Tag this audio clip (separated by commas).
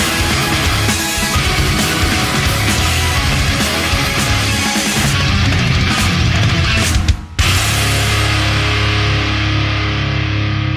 Music